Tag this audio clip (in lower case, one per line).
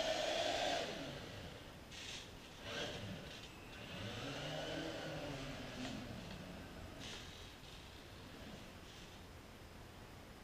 car